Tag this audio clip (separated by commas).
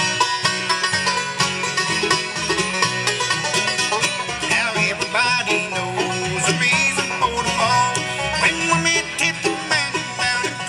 Bluegrass, Music